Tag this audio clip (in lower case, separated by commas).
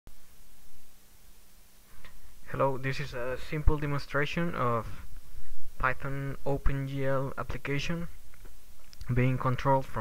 speech, inside a small room